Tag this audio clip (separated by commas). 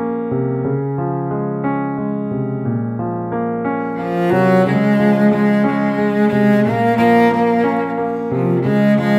playing cello